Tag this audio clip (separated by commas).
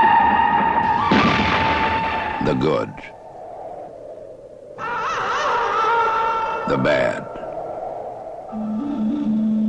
Speech, Music